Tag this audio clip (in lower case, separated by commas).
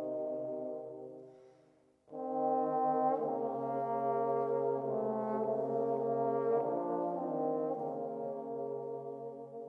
music, trombone